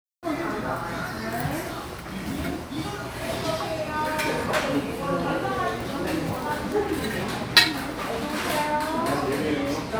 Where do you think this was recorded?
in a crowded indoor space